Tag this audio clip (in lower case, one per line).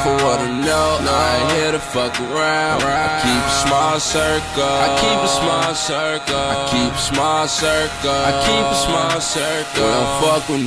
music